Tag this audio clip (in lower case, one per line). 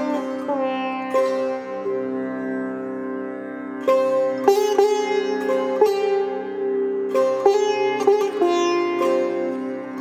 playing sitar